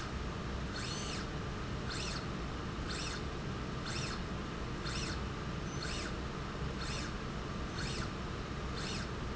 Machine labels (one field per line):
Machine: slide rail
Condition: normal